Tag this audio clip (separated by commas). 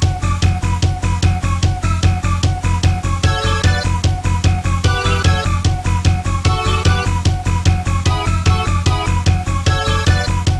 Music